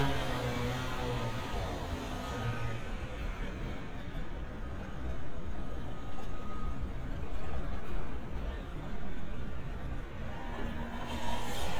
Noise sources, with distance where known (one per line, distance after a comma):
unidentified powered saw, near
reverse beeper, far